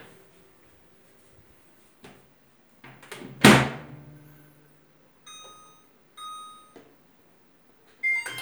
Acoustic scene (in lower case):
kitchen